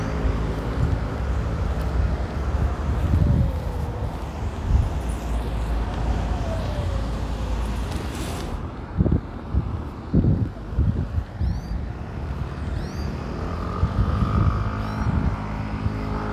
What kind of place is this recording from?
residential area